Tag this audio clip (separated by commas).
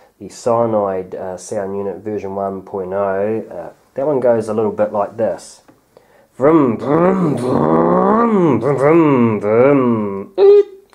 Speech